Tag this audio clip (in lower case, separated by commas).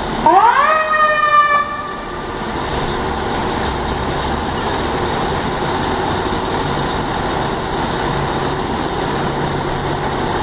fire engine, truck, emergency vehicle